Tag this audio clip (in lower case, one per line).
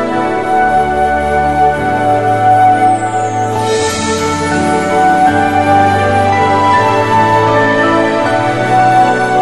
music